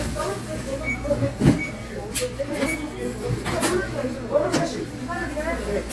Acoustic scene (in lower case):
crowded indoor space